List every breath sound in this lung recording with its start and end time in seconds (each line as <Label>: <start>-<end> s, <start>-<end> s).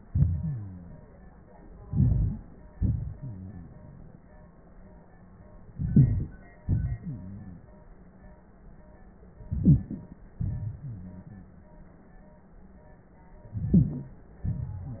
Inhalation: 1.88-2.40 s, 5.66-6.60 s, 9.36-10.39 s, 13.42-14.49 s
Exhalation: 2.74-4.23 s, 6.61-7.96 s, 10.42-11.95 s
Wheeze: 0.40-1.00 s, 3.20-3.71 s, 7.01-7.63 s, 10.81-11.47 s